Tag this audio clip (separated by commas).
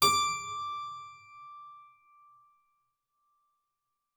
Keyboard (musical), Music, Musical instrument